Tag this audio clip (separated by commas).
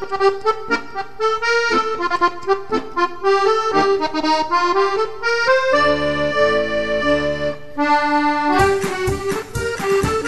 Music, Accordion